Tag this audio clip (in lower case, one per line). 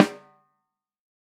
snare drum
drum
music
percussion
musical instrument